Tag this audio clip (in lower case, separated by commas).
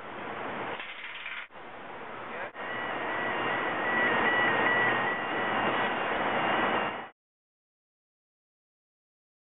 speech